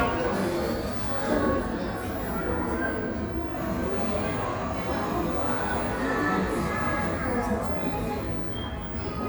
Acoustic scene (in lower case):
cafe